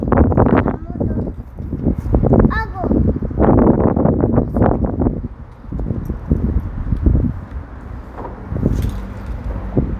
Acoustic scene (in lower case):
residential area